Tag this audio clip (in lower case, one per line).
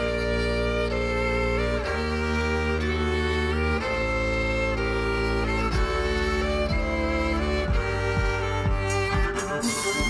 music
classical music